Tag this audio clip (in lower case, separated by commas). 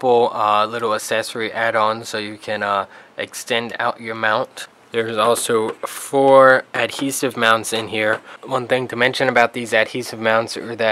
speech